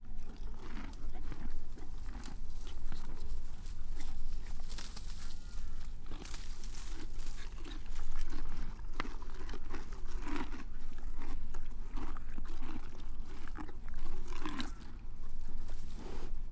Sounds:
livestock, animal

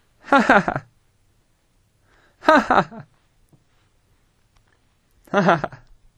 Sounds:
human voice, chuckle, laughter

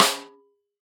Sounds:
snare drum, music, percussion, musical instrument, drum

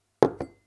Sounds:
glass

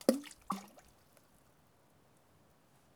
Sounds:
splatter, water, liquid

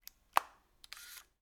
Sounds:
mechanisms, camera

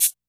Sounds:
percussion, music, musical instrument, rattle (instrument)

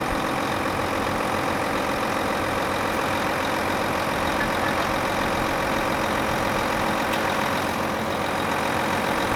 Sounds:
motor vehicle (road), vehicle, truck

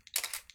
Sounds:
camera, mechanisms

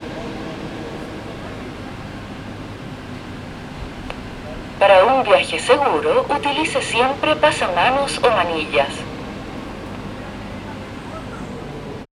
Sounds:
vehicle, underground, rail transport

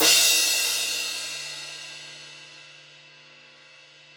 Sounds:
crash cymbal, musical instrument, music, percussion, cymbal

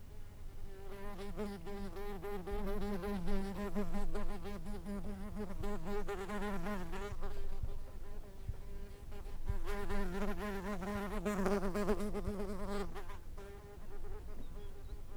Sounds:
wild animals, insect, animal

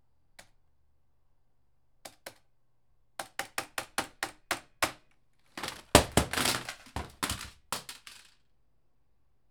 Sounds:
computer keyboard, typing, home sounds

